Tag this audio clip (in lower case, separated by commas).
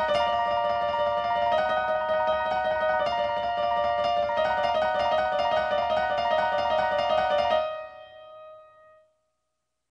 music